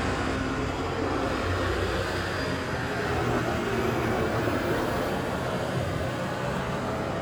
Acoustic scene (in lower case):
street